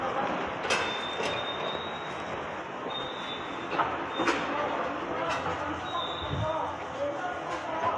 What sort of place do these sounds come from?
subway station